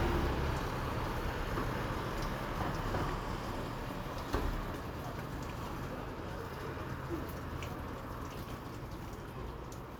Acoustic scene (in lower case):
residential area